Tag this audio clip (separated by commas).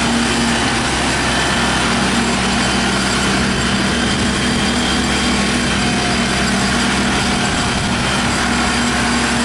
outside, rural or natural, Vehicle